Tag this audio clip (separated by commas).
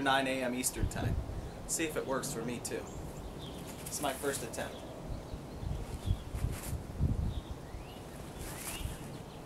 Speech